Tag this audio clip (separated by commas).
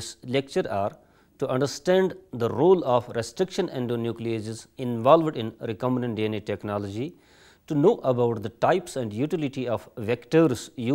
Speech